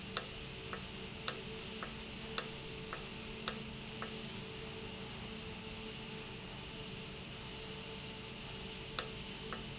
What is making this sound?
valve